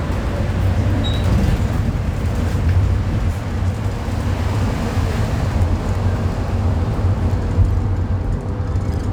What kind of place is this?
bus